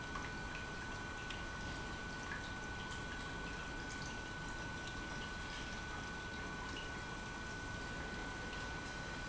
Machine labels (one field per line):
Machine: pump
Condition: normal